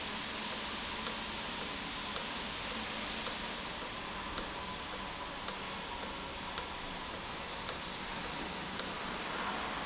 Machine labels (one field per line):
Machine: valve